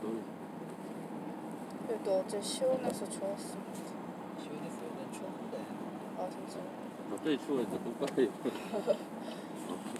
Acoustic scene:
car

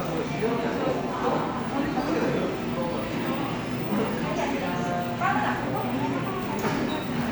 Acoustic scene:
cafe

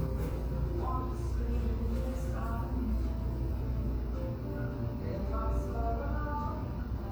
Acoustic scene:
cafe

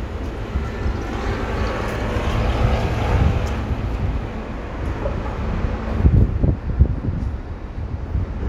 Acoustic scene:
street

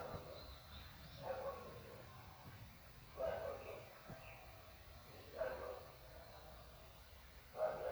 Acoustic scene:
park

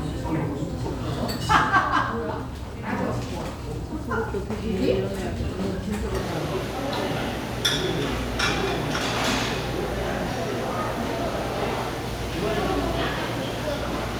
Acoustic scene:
restaurant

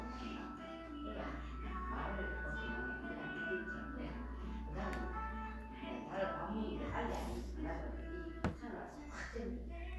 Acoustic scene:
crowded indoor space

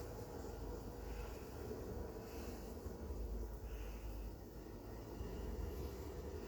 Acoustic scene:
elevator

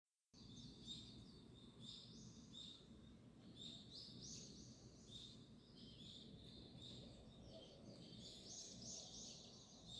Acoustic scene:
park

